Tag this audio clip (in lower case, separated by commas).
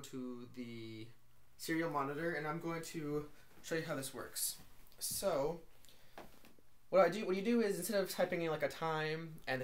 speech